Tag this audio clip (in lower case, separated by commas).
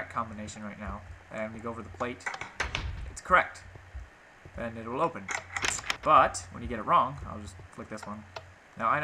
speech